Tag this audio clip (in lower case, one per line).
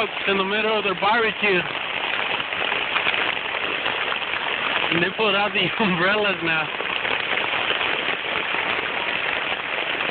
speech
rain on surface
raindrop